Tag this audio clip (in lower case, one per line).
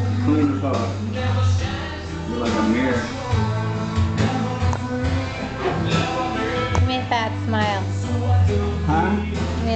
speech
music